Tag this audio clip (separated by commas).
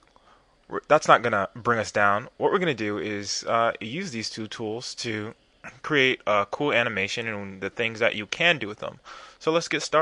Speech